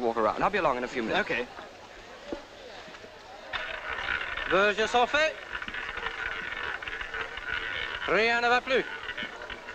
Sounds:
Speech

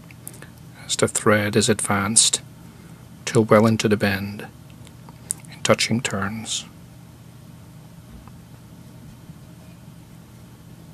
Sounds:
Speech

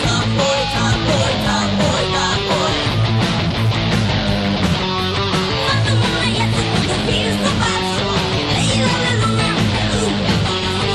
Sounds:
Plucked string instrument, Music, Guitar, Musical instrument

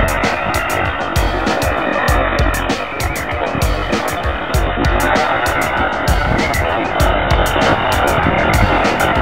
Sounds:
Music, outside, rural or natural

